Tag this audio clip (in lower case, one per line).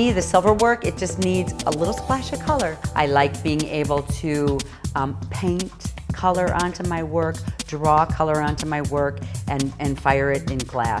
music
speech